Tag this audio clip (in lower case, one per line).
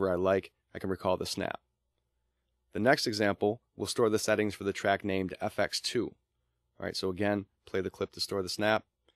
speech